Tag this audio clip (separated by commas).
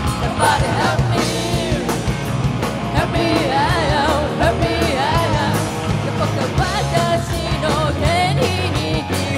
Music